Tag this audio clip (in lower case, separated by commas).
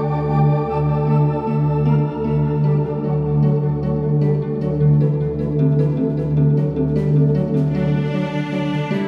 music